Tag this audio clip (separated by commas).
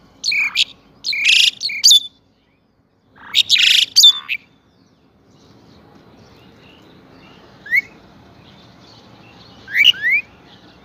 mynah bird singing